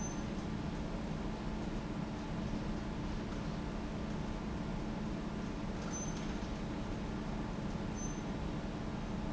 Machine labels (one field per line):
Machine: fan